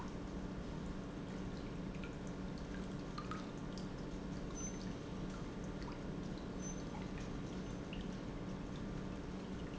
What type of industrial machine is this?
pump